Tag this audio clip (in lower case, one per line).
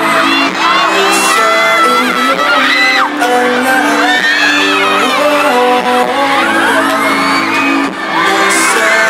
singing
music